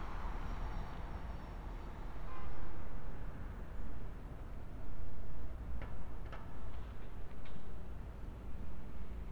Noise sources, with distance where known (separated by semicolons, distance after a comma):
unidentified alert signal